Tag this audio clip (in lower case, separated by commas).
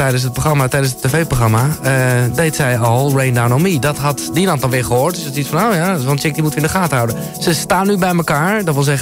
speech, music